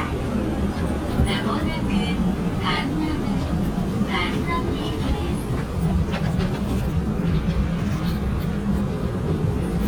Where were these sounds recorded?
on a subway train